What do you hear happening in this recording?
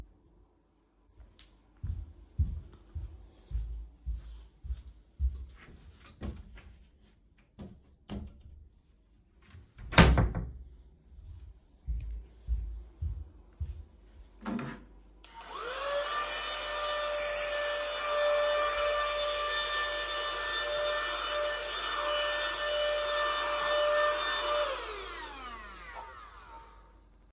I walked towards the wardrobe to get a shirt and closed it. Then I want to the vacuum cleaner and started cleaning table.